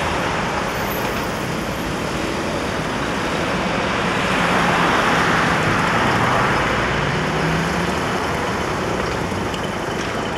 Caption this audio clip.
Loud engine noise with squeaking and road noise